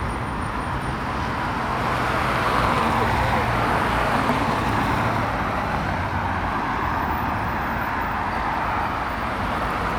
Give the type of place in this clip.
street